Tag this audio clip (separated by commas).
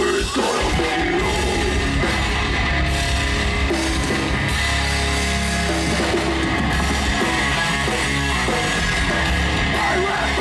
Music, Speech